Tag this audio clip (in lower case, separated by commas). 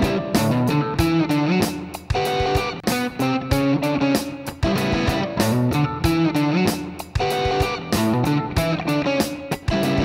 music, musical instrument, guitar, plucked string instrument